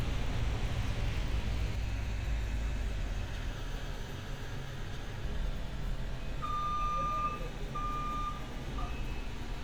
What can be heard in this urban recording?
unidentified alert signal